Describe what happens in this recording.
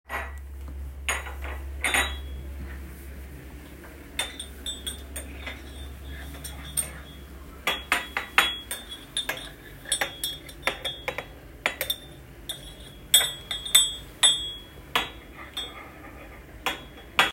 Mixing tea in a cup with a metal spoon while the dishwasher runs silently in the background.